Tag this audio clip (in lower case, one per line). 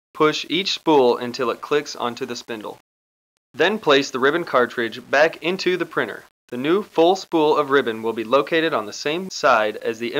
speech